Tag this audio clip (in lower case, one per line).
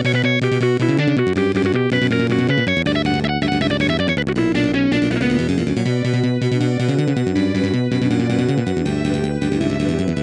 music
video game music